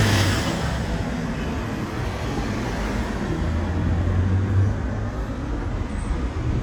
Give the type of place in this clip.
street